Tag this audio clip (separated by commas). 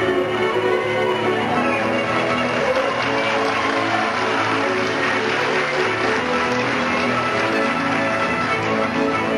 fiddle, Musical instrument, Music